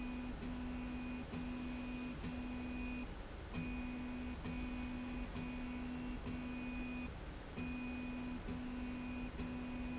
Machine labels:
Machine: slide rail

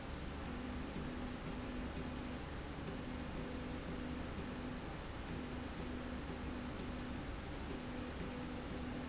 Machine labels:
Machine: slide rail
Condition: normal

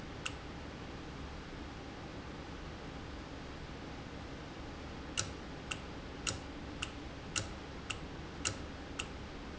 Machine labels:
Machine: valve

